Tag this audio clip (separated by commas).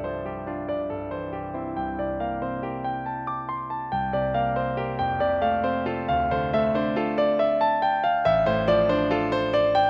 Music